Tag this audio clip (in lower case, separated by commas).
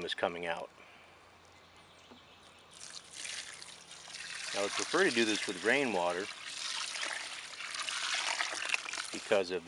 speech, trickle